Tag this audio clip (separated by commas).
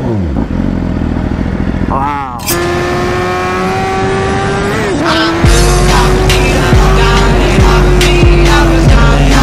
Vehicle, Speech, Motorcycle, Music